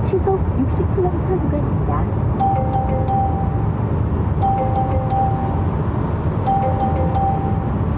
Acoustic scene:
car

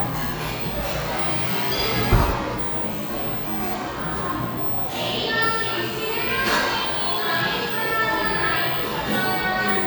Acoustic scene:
cafe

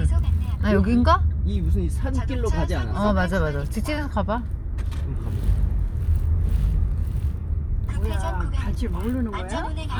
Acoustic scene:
car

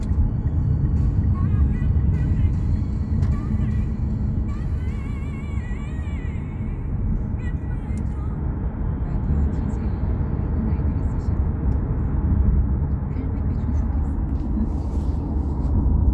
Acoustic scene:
car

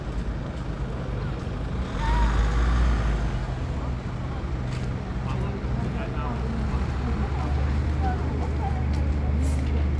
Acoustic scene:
street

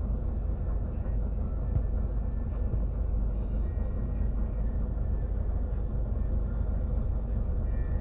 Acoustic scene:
bus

